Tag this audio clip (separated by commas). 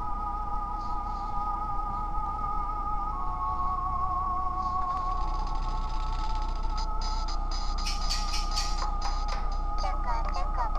Music